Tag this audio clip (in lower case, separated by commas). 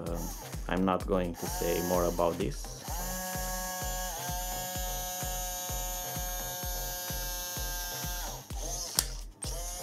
speech, music